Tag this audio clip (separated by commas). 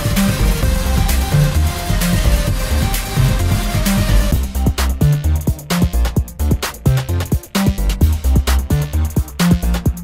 Music